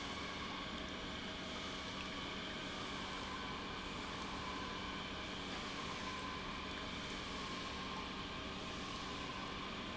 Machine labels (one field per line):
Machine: pump